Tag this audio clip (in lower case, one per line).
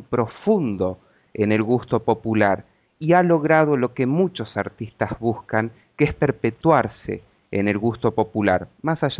speech